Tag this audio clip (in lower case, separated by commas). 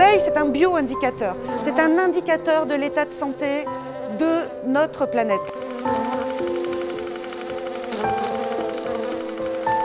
insect